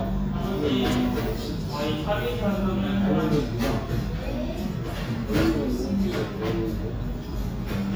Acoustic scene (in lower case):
restaurant